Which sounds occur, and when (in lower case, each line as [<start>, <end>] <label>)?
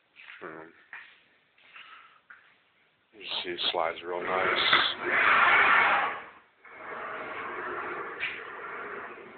[0.00, 9.35] background noise
[0.11, 0.38] generic impact sounds
[0.35, 0.94] male speech
[0.87, 1.12] generic impact sounds
[1.52, 2.27] breathing
[2.25, 2.62] generic impact sounds
[3.12, 4.92] male speech
[4.25, 4.72] surface contact
[4.71, 4.86] generic impact sounds
[5.07, 6.39] surface contact
[6.63, 9.35] surface contact
[8.19, 8.32] generic impact sounds